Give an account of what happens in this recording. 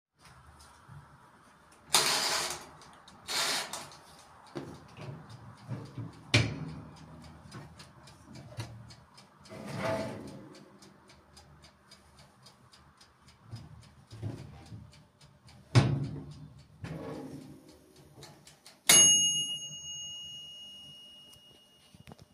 I Turned microwave on, then a contnous beep started. I opened the door of the microwaveand later closed it. The continous beep stopped immediately, so I turned of the microwave, and a loud drop of noise was made which sginfied that the oven has been turned off.